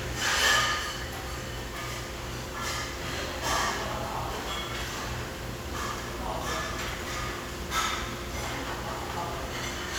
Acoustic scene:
restaurant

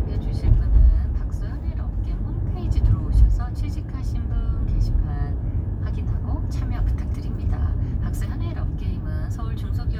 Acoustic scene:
car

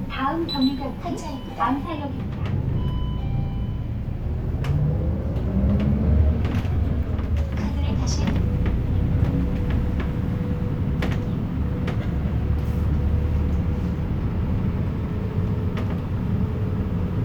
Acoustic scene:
bus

